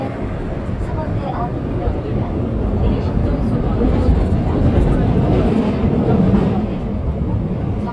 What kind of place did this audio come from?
subway train